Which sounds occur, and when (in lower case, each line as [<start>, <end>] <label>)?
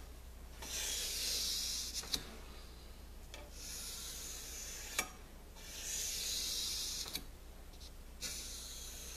[0.00, 9.15] background noise
[0.52, 2.23] scrape
[0.54, 0.73] generic impact sounds
[1.92, 2.25] generic impact sounds
[3.25, 3.42] generic impact sounds
[3.48, 5.17] scrape
[4.91, 5.10] generic impact sounds
[5.52, 7.30] scrape
[7.10, 7.22] generic impact sounds
[7.72, 7.95] scrape
[8.16, 9.15] scrape